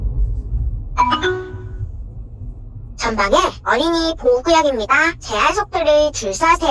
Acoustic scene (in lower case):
car